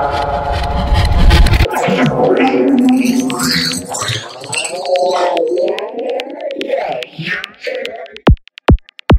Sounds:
music, scratching (performance technique)

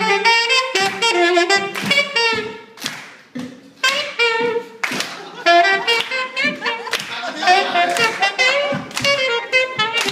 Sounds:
jazz, clapping, funk, music

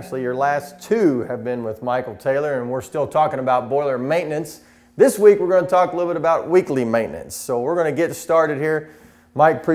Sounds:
speech

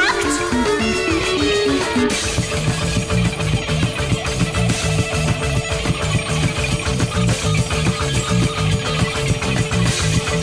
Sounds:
music

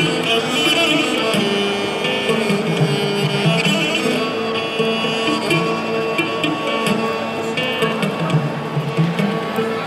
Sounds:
playing sitar

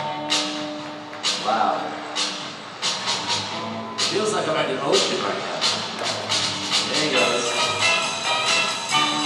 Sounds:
music, speech

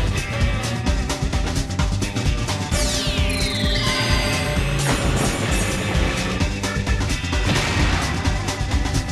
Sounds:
music

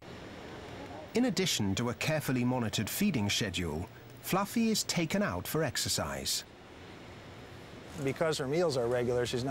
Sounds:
speech, inside a small room

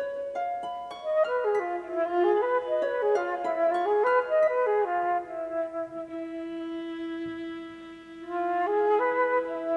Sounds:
bowed string instrument, violin, harp, pizzicato

